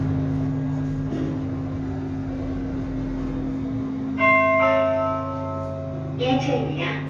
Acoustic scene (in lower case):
elevator